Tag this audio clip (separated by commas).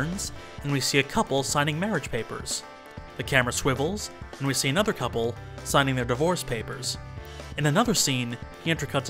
Speech, Music